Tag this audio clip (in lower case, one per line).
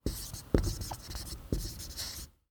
domestic sounds
writing